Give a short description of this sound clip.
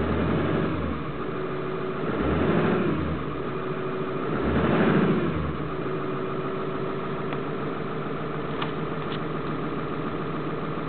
An engine is idling and revved up alternately